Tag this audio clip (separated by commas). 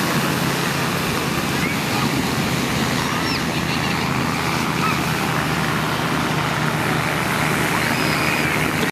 Speech